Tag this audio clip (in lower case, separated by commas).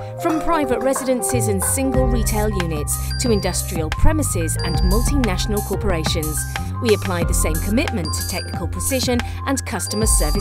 speech, music